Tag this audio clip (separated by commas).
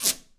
Squeak